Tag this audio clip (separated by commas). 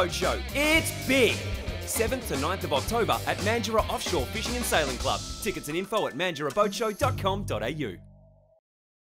Music, Speech